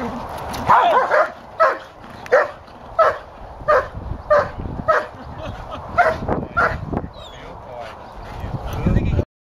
Dogs barking outside with human owners laughing in background